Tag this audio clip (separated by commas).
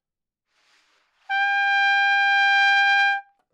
Music, Trumpet, Musical instrument, Brass instrument